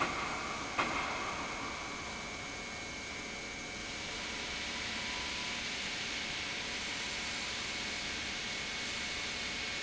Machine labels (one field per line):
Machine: pump